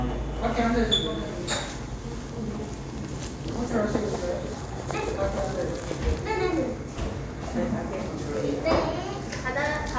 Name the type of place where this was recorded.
cafe